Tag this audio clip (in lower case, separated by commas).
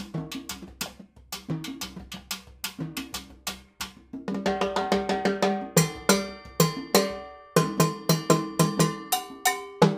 playing timbales